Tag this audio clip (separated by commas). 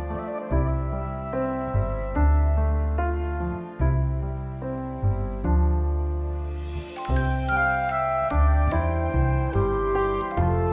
running electric fan